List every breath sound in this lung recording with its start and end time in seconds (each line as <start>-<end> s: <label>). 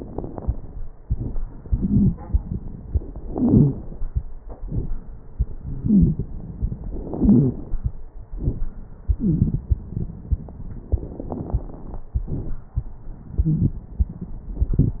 1.00-2.87 s: inhalation
1.00-2.87 s: crackles
3.23-3.97 s: exhalation
3.23-3.97 s: crackles
5.39-6.86 s: inhalation
5.82-6.23 s: wheeze
6.83-7.93 s: exhalation
7.17-7.59 s: wheeze
9.17-9.66 s: wheeze
10.91-12.06 s: inhalation
10.91-12.06 s: crackles
12.14-13.04 s: exhalation
12.14-13.04 s: crackles